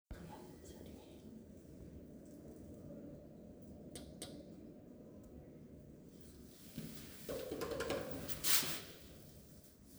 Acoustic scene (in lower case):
elevator